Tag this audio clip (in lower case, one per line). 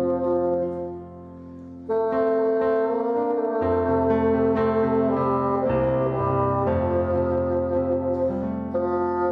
playing bassoon